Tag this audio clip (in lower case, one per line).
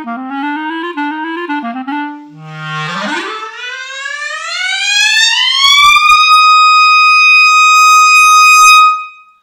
music
clarinet
woodwind instrument
playing clarinet